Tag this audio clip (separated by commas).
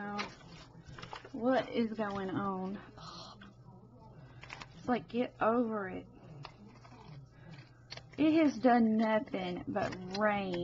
Speech, inside a small room